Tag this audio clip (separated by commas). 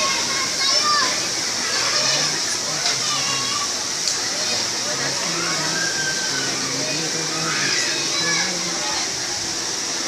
Speech, Waterfall